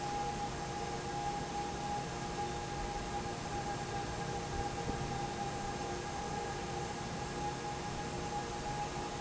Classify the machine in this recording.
fan